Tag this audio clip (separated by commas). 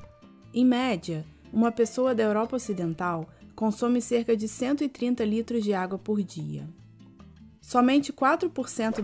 Speech, Music